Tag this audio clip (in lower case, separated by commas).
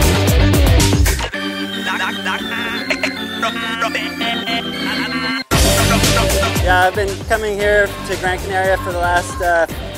speech, music